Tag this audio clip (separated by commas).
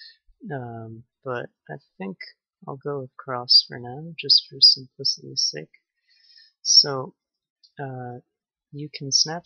Speech